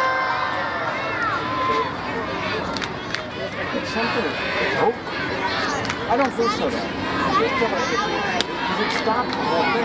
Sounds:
speech

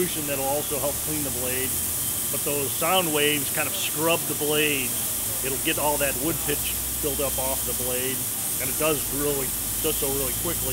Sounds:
speech

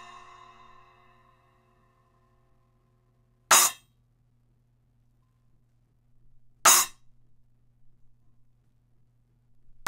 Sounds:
music

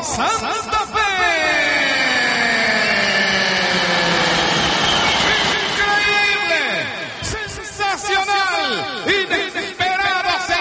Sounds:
speech

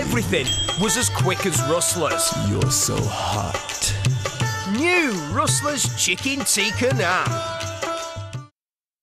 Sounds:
speech
music

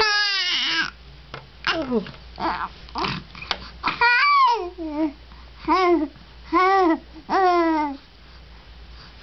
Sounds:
inside a small room

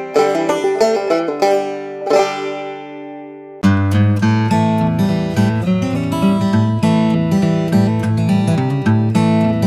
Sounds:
music
banjo

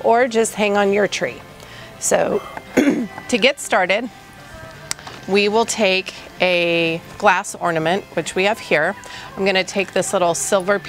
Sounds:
speech
music

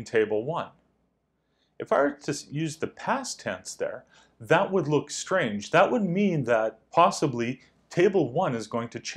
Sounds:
speech

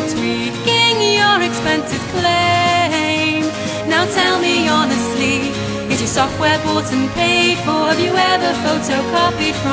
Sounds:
music

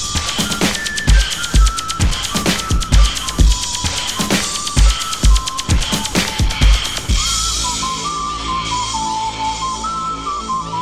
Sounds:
electronic music
dubstep
music

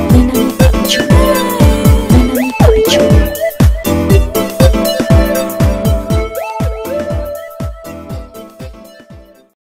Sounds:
music
exciting music

